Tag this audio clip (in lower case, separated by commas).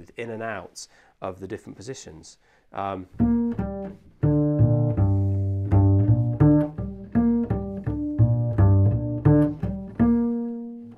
playing double bass